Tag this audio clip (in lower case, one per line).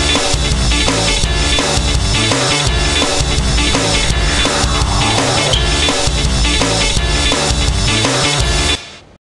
music